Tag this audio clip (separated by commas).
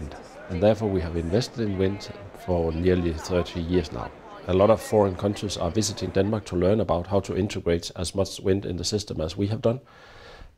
Speech